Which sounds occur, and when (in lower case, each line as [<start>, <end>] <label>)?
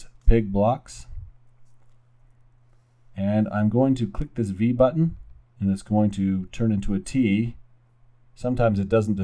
[0.00, 9.23] background noise
[0.21, 1.31] male speech
[3.13, 5.13] male speech
[5.56, 7.57] male speech
[8.37, 9.23] male speech